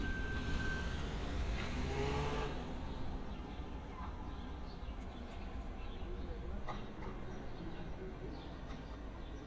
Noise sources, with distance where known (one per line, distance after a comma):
medium-sounding engine, far
person or small group talking, far